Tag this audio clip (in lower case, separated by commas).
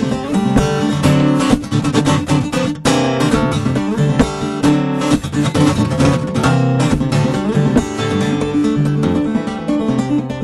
plucked string instrument, music, strum, guitar, musical instrument, acoustic guitar